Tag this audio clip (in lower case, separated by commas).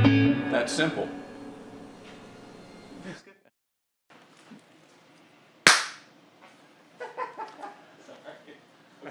music, speech